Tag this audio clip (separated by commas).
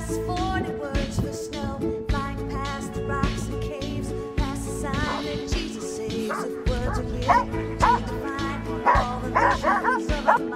Bow-wow, Music